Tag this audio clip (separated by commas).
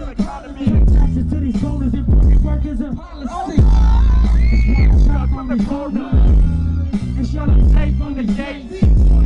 Music